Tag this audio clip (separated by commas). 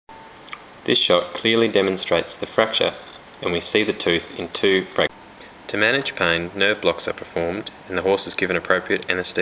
Speech